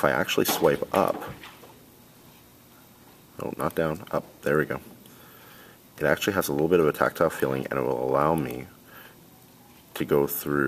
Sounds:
Speech

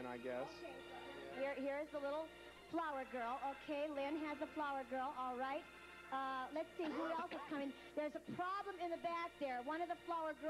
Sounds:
Music, Speech

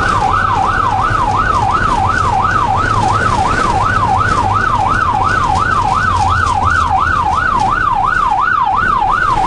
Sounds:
ambulance siren

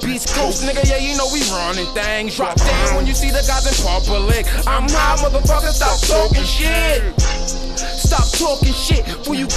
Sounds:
Music

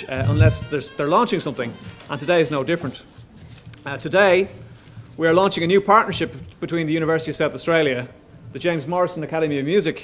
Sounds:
Speech, Music

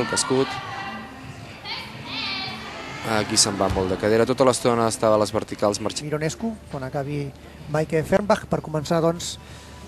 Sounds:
Speech, Music

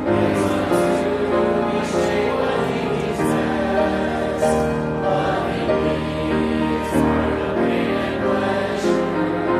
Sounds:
Music, Male singing, Choir, Female singing

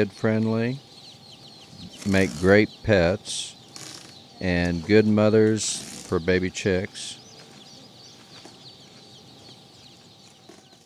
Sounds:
Cluck, rooster, Fowl

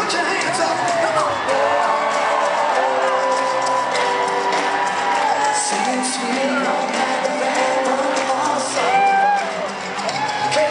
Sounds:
Singing, Music

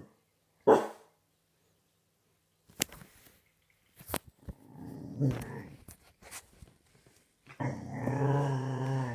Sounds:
dog growling

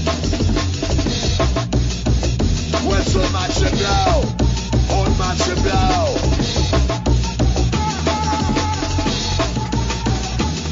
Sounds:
Drum and bass, Music, Electronic music

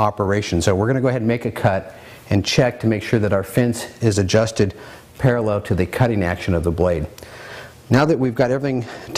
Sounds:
Speech

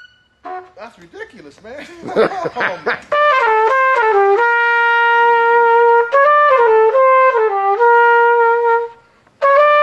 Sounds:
Trumpet, Brass instrument

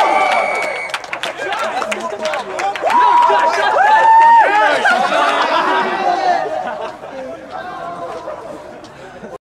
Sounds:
Speech

